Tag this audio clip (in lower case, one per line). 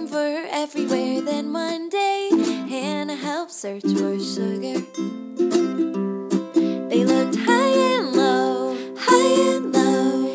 musical instrument
music